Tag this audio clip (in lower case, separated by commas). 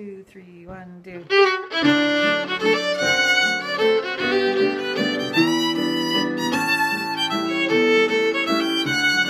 music, violin, speech, musical instrument